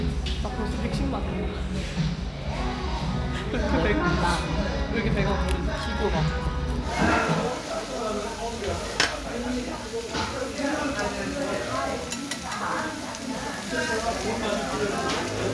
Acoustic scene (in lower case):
restaurant